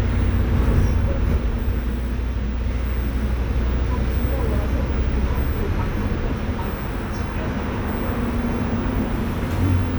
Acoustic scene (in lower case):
bus